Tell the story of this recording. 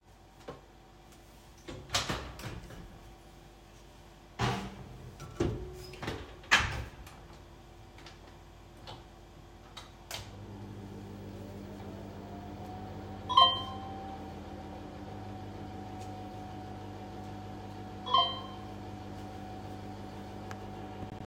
I opened the microwave and turned it on. While waiting, I received two messages on my phone.